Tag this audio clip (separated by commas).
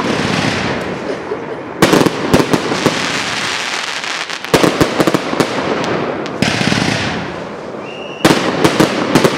Firecracker, fireworks banging, Fireworks